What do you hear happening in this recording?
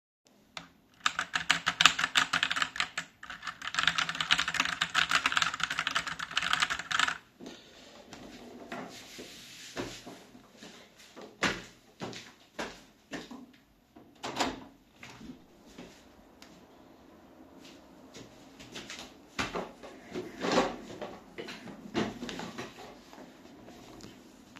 I was typing on my keyboard, then I got up from my chair and walked to the window, opening it. Then I walked back to my chair.